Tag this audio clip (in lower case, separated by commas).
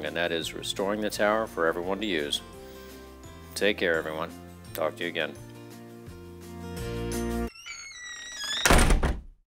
music, speech